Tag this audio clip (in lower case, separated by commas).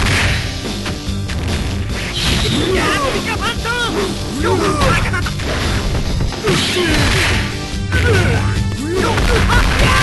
music, speech